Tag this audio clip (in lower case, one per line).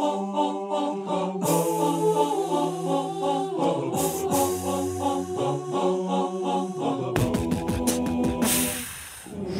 music